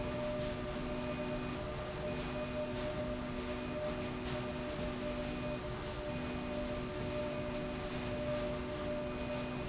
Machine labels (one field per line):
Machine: slide rail